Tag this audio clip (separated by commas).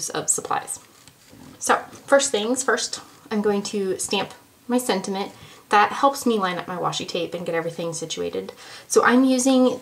Speech